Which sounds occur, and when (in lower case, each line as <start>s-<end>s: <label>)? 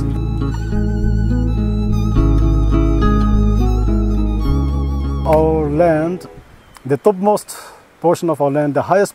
0.0s-6.3s: music
0.0s-9.1s: background noise
5.2s-6.4s: man speaking
5.2s-5.4s: generic impact sounds
6.8s-7.8s: man speaking
7.4s-7.8s: breathing
8.0s-9.1s: man speaking